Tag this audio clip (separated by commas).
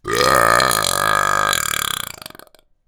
eructation